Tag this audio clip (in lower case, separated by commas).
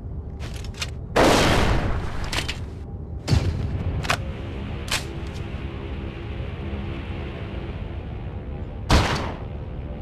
gunfire